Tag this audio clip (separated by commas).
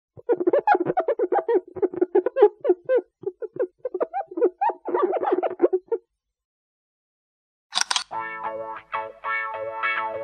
Music